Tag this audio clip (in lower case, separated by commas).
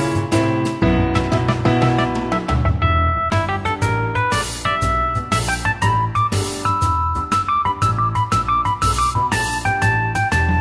music